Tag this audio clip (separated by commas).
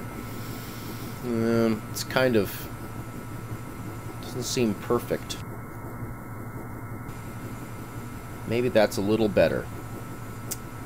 Speech